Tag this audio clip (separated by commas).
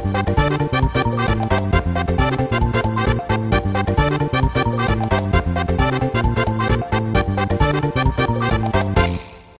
Music